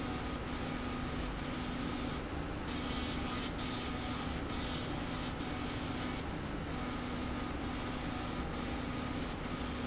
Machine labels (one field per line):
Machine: slide rail